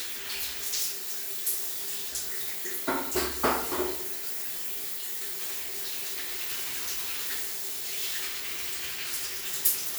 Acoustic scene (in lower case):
restroom